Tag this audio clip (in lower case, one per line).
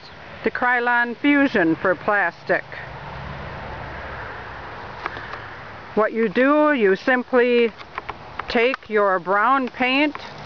speech